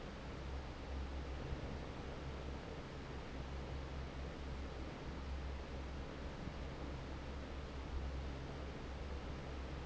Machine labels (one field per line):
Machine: fan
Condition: normal